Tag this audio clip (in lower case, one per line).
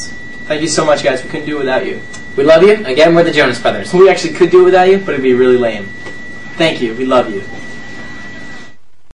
speech